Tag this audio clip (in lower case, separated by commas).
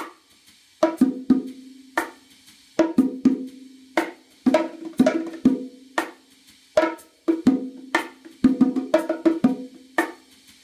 playing bongo